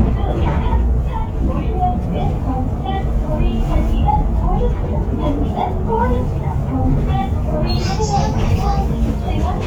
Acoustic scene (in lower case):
bus